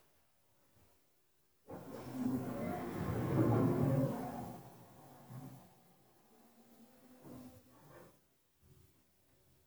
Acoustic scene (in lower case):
elevator